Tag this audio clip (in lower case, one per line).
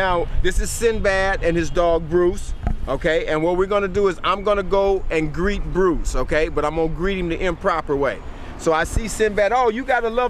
speech